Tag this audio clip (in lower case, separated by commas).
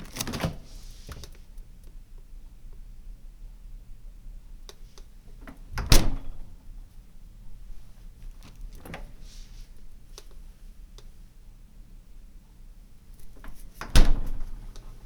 slam, door, home sounds